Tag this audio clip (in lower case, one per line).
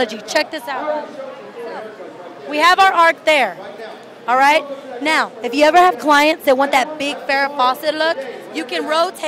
speech